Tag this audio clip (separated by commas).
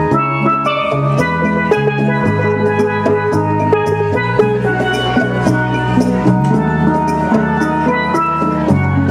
Steelpan, Musical instrument, Music